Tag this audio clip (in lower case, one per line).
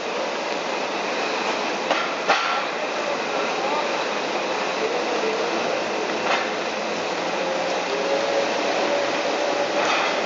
vehicle
truck
speech